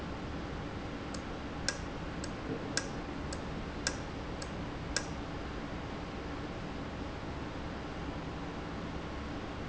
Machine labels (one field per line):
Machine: valve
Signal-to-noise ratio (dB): -6 dB